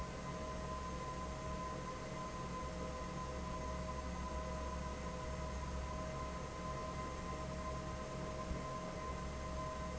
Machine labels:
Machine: fan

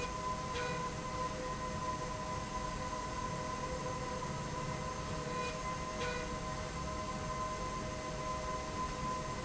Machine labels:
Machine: slide rail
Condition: normal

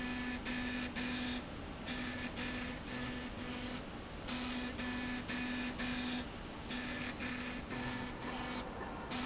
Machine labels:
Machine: slide rail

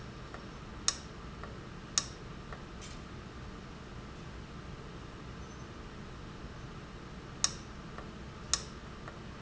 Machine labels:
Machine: valve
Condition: abnormal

